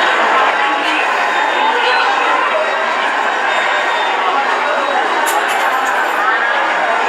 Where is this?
in a subway station